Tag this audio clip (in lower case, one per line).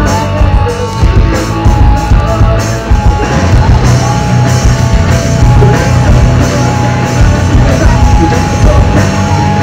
music